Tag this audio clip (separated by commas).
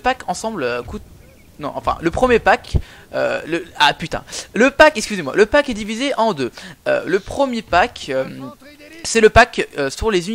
Speech